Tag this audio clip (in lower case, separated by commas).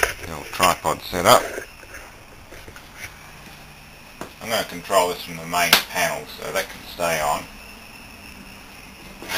speech